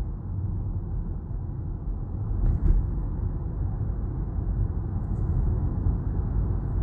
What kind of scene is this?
car